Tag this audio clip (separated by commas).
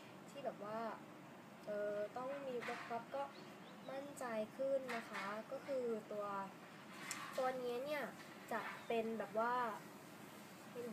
Speech